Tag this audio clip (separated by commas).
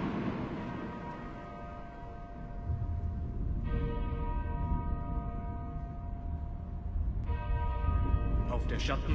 Speech